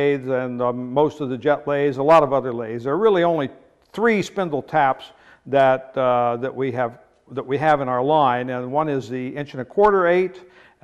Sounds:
speech

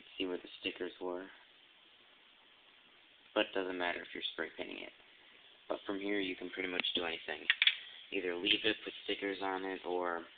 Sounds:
speech

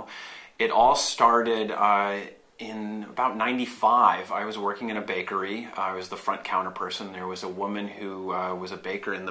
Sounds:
speech

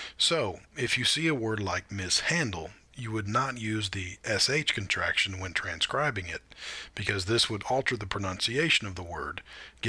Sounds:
speech

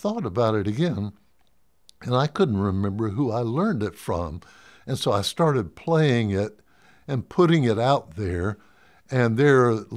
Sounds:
speech

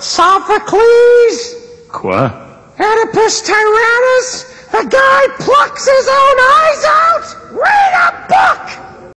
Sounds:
speech

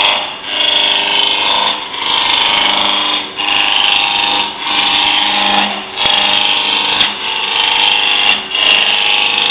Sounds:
power tool

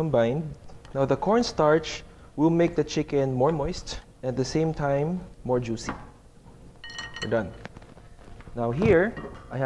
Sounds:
speech

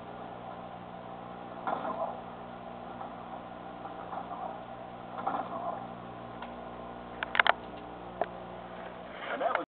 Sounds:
speech

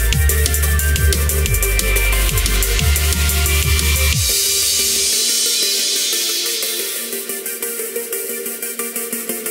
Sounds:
bass drum

